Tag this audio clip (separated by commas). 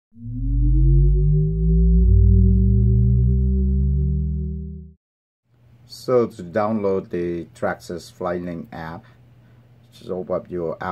Speech, inside a small room